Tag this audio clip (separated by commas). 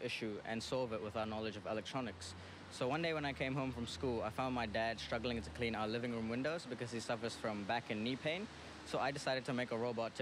Speech